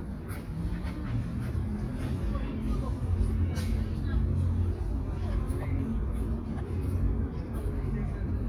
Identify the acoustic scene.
park